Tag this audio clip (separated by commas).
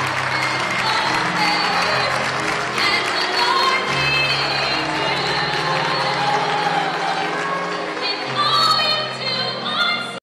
Music